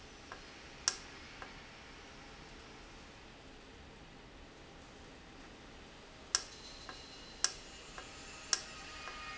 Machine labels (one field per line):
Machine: valve